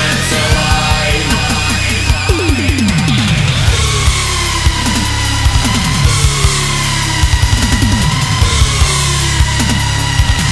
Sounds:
Music

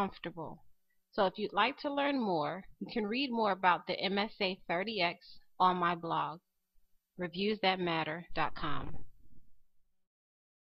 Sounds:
Speech

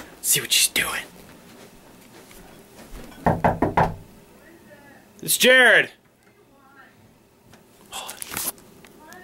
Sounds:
inside a small room, Speech

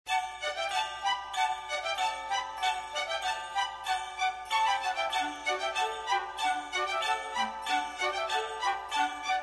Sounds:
Jingle bell

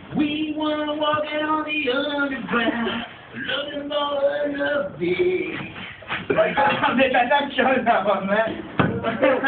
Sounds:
Male singing, Speech

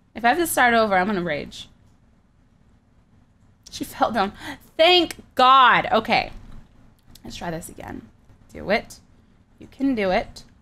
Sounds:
Speech

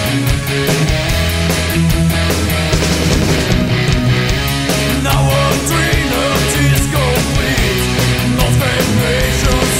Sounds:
Rock music, Music, Progressive rock

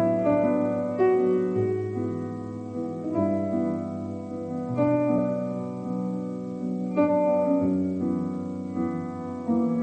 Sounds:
Music

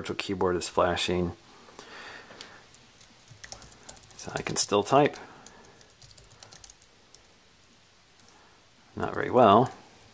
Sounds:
Speech, Computer keyboard, Typing

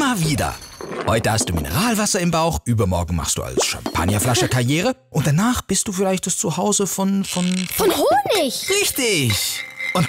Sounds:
Speech

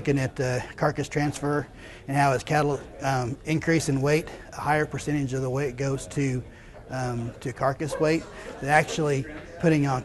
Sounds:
Speech

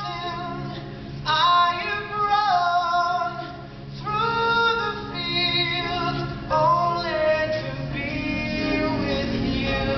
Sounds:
Music

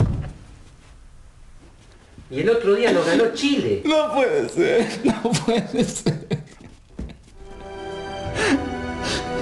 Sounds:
Music, Whimper, Speech

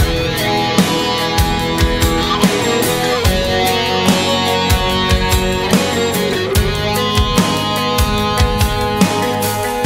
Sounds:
Music

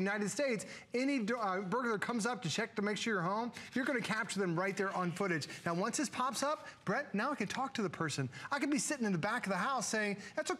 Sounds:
Speech

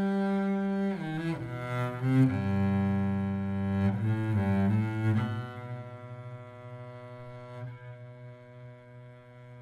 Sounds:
playing double bass

